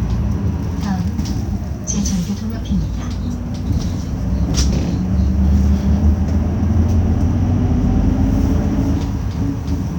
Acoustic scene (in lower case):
bus